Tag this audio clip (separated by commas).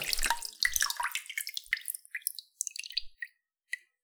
Liquid, Drip, Raindrop, Rain, Water